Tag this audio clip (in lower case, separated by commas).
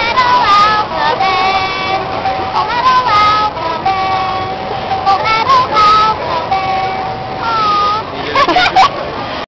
music, speech